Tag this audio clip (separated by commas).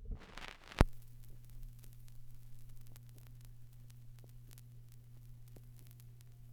Crackle